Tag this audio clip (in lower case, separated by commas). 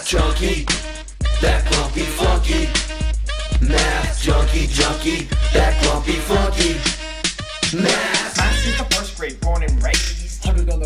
music